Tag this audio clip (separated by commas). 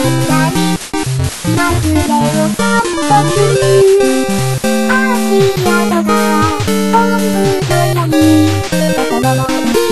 Music